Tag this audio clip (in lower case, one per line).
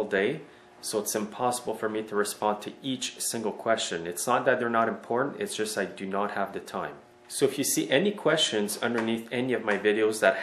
speech